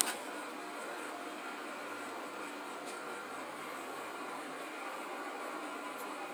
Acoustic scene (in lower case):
subway train